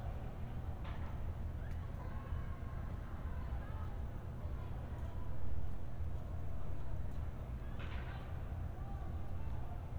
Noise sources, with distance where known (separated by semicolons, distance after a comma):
unidentified human voice, far